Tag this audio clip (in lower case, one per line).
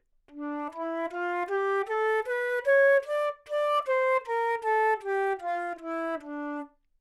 music
wind instrument
musical instrument